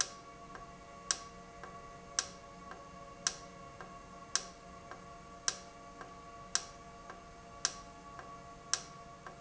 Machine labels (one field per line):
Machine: valve